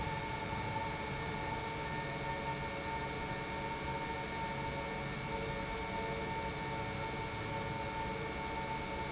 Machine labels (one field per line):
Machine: pump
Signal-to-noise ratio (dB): -6 dB